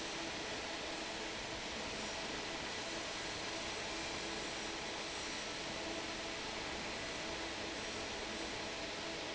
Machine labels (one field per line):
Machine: fan